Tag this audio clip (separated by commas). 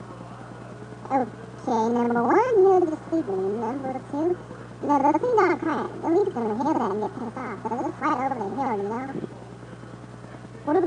Speech